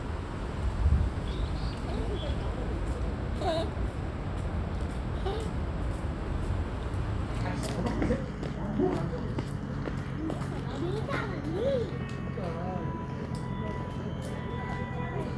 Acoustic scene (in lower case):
park